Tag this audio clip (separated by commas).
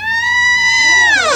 Squeak, Door, Domestic sounds